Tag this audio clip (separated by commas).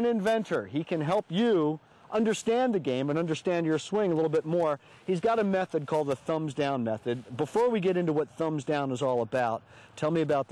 Speech